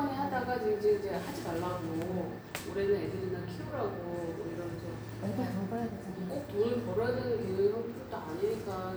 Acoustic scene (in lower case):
cafe